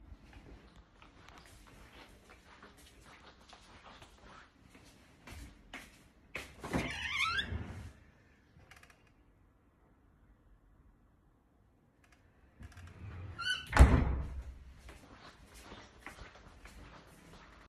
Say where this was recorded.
living room